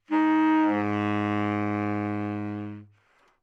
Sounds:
music, woodwind instrument, musical instrument

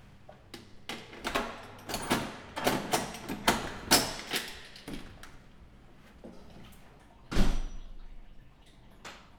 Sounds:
door, slam, domestic sounds

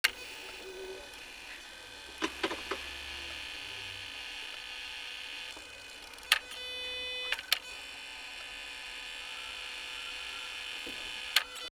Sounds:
vehicle

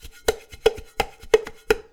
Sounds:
home sounds, dishes, pots and pans

